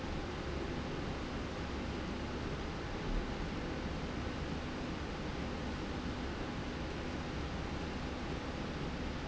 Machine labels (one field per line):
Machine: slide rail